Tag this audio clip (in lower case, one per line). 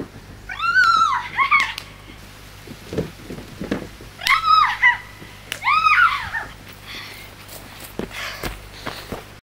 outside, rural or natural
run